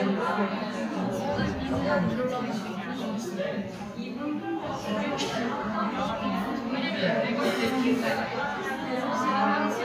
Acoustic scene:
crowded indoor space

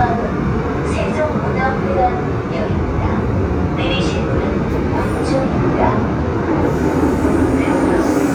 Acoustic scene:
subway train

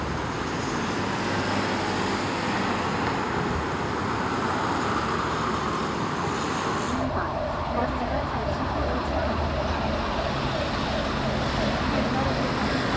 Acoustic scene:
street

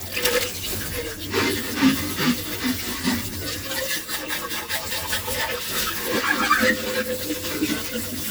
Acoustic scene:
kitchen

